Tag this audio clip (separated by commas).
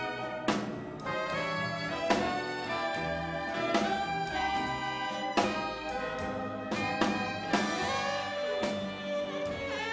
Orchestra, Music